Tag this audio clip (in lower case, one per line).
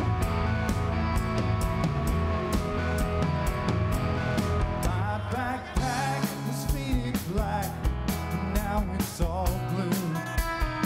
music